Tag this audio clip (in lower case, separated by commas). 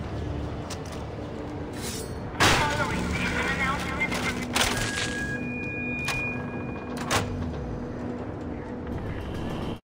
music, speech